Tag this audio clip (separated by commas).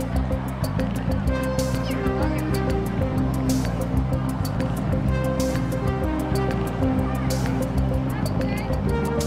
Speech, Music